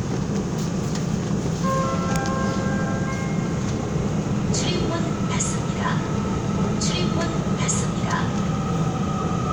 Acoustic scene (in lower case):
subway train